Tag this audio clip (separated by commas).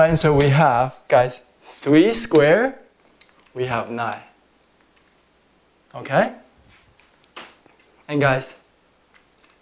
Speech, inside a small room